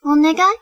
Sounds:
human voice
woman speaking
speech

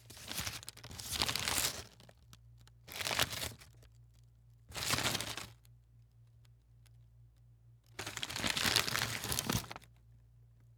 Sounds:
crumpling

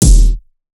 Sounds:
drum
percussion
musical instrument
bass drum
keyboard (musical)
music

